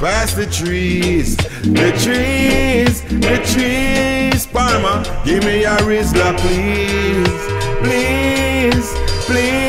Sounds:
Music

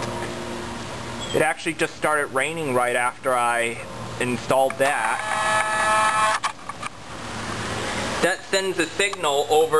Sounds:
Speech, Rain on surface

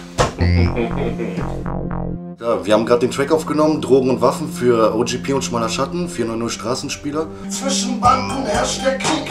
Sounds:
Music, Speech

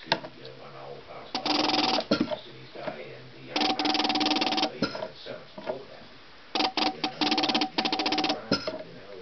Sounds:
Speech

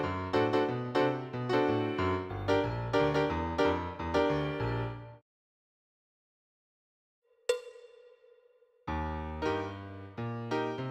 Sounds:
Musical instrument, Piano, Keyboard (musical)

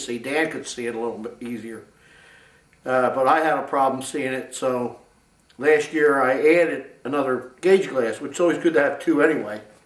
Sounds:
Speech

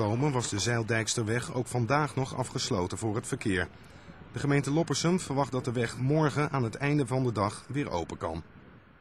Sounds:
Speech

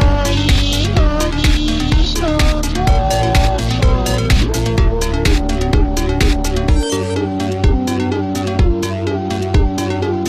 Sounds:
Electronica

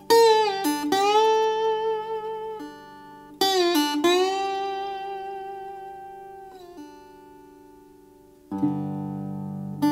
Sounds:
Guitar, Musical instrument, Plucked string instrument, Music

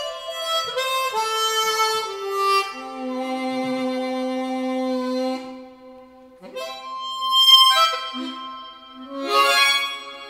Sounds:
playing harmonica

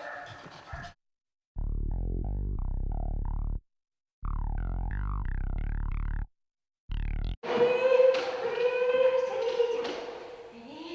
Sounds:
Music

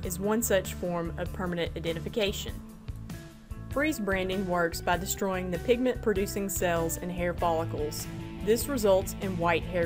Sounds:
Speech, Music

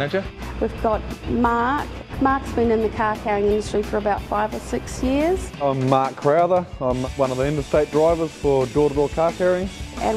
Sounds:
Speech, Music

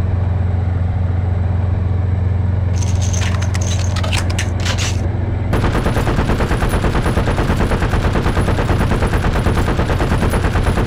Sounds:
Gunshot, Machine gun

